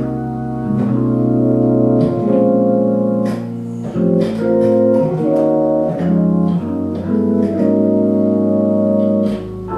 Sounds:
electric piano, playing piano, keyboard (musical), piano

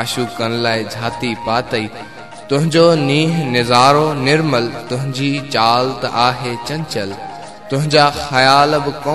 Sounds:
music, mantra

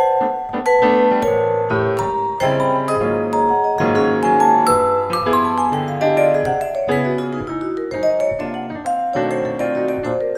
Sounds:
vibraphone, music, piano, musical instrument

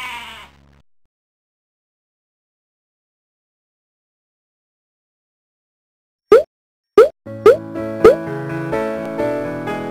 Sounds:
sheep, animal, music

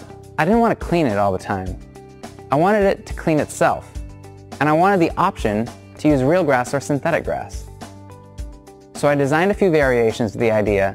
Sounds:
speech, music

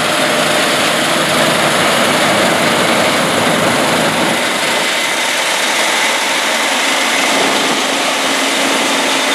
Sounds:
vehicle, outside, rural or natural, engine

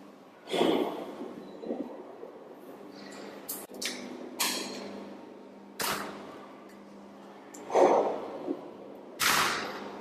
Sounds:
opening or closing drawers

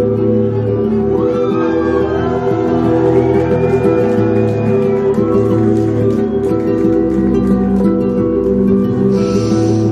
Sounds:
music

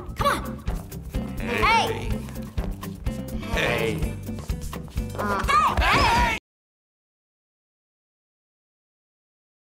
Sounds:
music, speech

